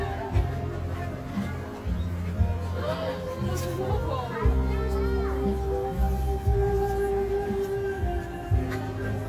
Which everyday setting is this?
park